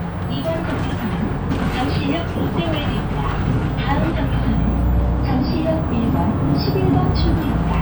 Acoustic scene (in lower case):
bus